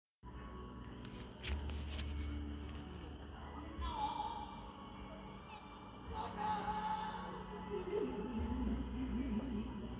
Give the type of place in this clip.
park